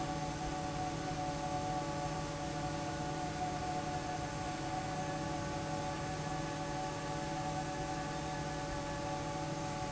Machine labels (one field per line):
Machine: fan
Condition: normal